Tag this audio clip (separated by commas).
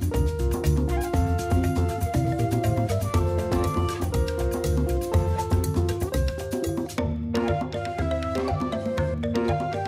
Music